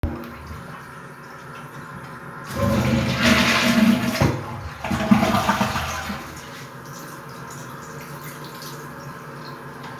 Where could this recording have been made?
in a restroom